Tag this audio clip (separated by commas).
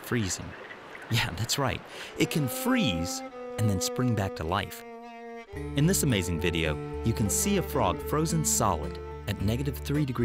Speech, Music